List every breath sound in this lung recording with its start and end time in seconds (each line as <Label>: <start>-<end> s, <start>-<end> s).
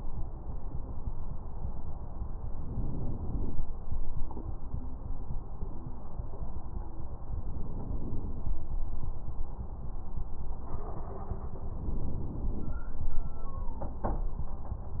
Inhalation: 2.54-3.61 s, 7.47-8.55 s, 11.74-12.81 s